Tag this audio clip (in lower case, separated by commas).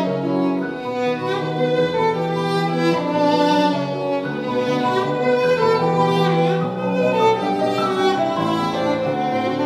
fiddle, musical instrument, music